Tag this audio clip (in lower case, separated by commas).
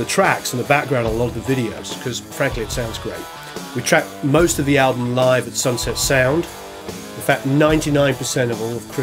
music, speech